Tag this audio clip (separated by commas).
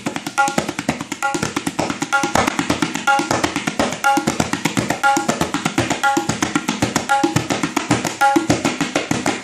Percussion, Tabla, Drum